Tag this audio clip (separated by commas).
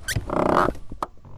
Car, Vehicle, Motor vehicle (road)